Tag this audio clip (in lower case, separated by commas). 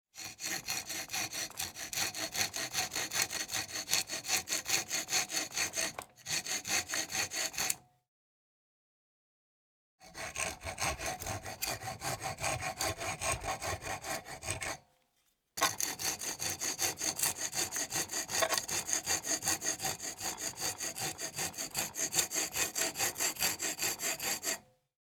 tools